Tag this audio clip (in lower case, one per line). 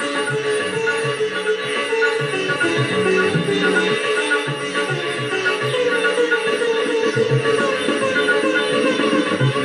playing sitar